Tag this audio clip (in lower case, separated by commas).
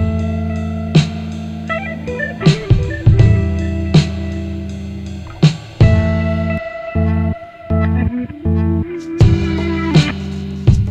music